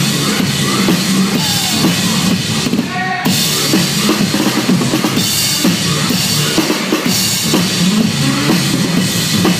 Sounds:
percussion
music

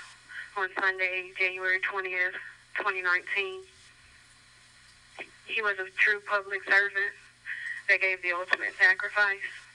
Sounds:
police radio chatter

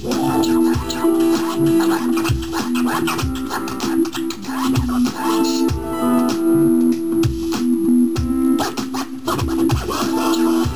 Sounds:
music
electronic music
scratching (performance technique)

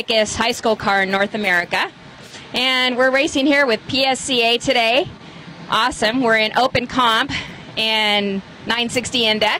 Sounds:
speech

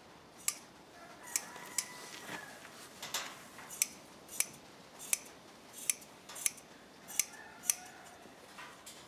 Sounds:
inside a small room

